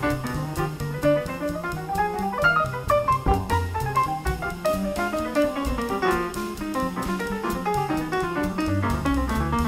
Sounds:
Music

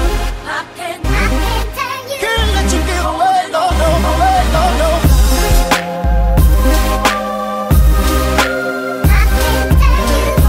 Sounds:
Music

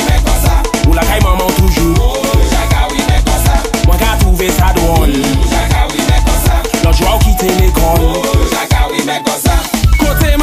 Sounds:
Music

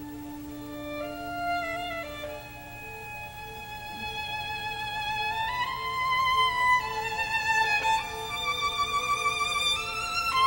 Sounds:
Musical instrument, fiddle, Music

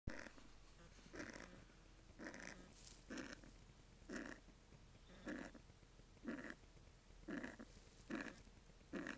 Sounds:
Breathing, Pig, Domestic animals, Animal

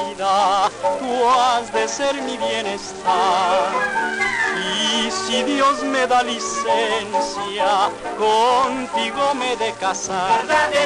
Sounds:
Folk music, Soundtrack music, Music

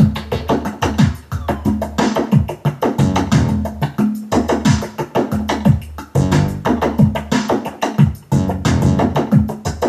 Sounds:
Percussion, Music

